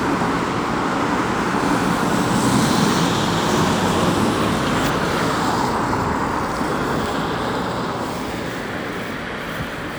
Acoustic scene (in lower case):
street